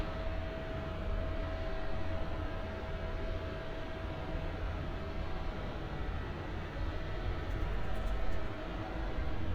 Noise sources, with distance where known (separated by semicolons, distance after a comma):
unidentified powered saw, far